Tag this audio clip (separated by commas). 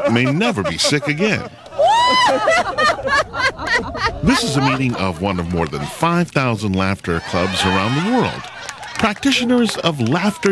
people sniggering, Speech, Snicker